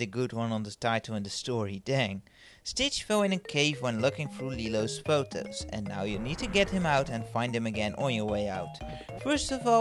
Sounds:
Narration

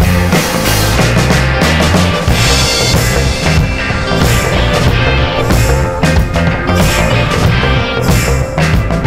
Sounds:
Music, Jazz

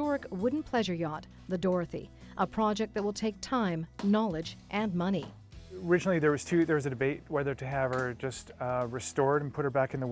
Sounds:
Speech

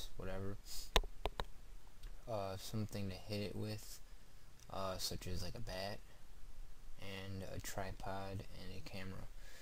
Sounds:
Speech

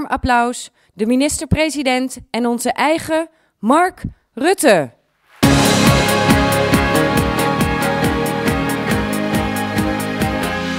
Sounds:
Speech, Music, Female speech, monologue

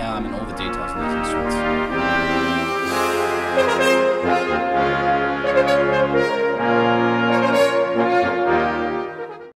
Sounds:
Brass instrument, Saxophone

